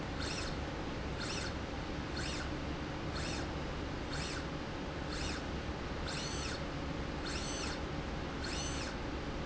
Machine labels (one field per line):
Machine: slide rail